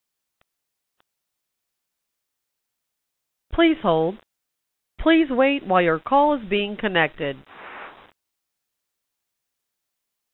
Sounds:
Speech

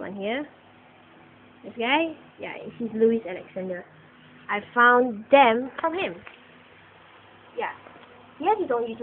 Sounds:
Speech

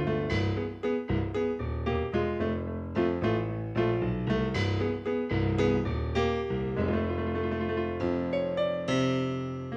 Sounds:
Music

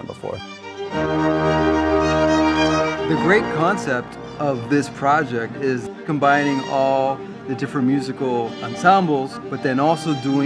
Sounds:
Speech, Music

